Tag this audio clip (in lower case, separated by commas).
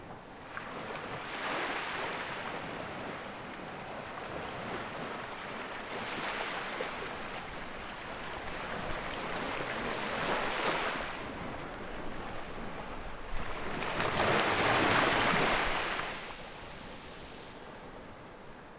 water, surf, ocean